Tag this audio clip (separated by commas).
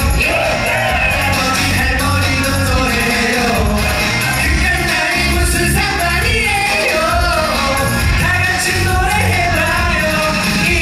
Music, Dance music